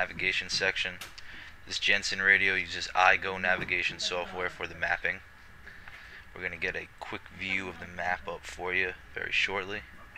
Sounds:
Speech

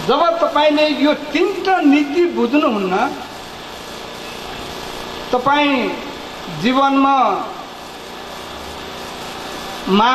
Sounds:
monologue, Speech, Male speech

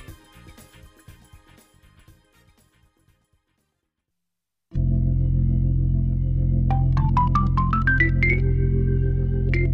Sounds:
Keyboard (musical), Electric piano, Piano

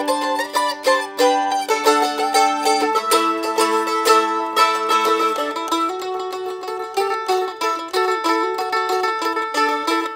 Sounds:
Music, Traditional music

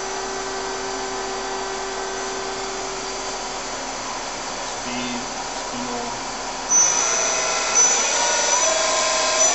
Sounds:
Speech

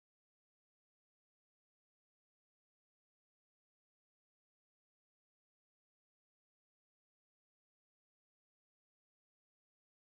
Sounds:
Silence

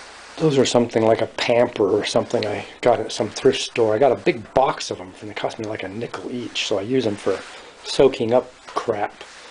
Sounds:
Speech

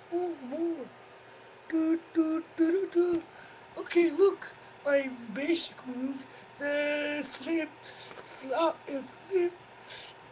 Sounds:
Speech

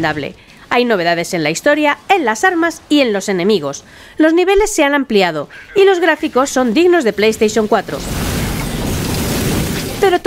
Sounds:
Speech

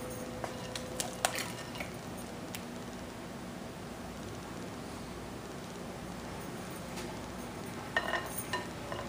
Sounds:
Rustle

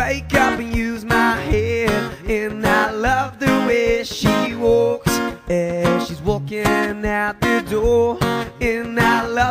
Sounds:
Music

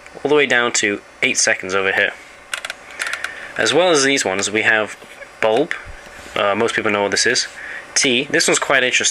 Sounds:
Speech

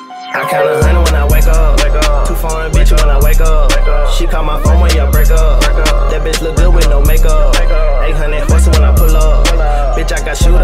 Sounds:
Music, Middle Eastern music

